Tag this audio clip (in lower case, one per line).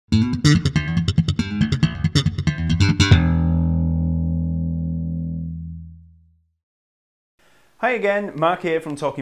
music
bass guitar